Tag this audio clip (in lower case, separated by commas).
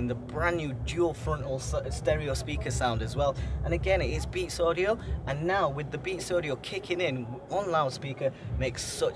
speech